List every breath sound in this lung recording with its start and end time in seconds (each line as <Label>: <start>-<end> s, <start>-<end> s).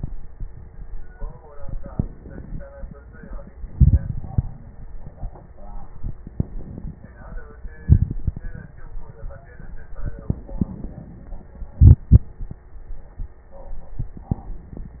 Inhalation: 1.59-2.56 s, 6.39-7.01 s, 10.23-11.15 s
Exhalation: 3.68-4.87 s, 7.84-8.71 s, 11.76-12.68 s
Crackles: 3.68-4.87 s, 6.39-7.01 s, 7.84-8.71 s